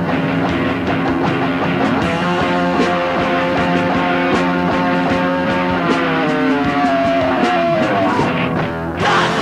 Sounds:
Music

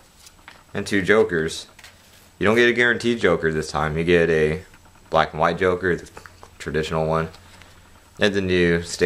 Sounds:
Speech

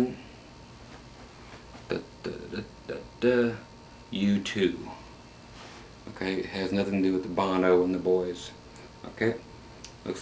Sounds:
Speech

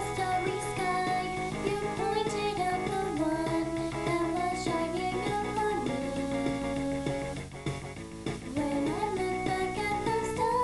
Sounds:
Music

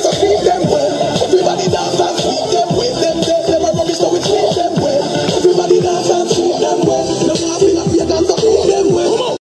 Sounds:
Music

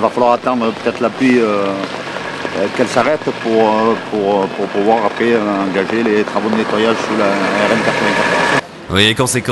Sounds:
Speech, Gush

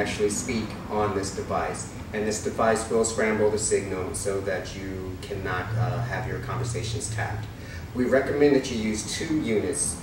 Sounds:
Speech

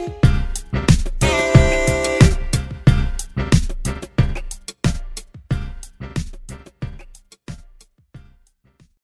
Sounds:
Jazz, Music

